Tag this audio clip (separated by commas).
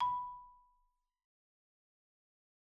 Music, Mallet percussion, xylophone, Percussion, Musical instrument